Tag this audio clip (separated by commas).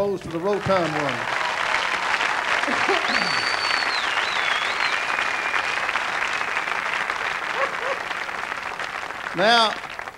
Speech